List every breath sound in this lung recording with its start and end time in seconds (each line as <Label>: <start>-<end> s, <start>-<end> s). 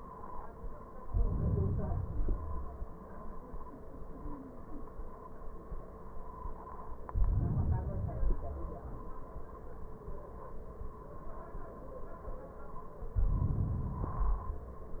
Inhalation: 0.99-2.07 s, 7.08-8.03 s, 13.11-14.37 s
Exhalation: 2.08-3.16 s, 8.06-9.07 s, 14.38-15.00 s